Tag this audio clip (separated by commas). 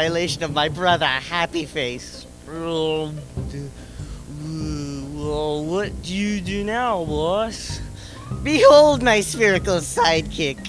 Speech, Music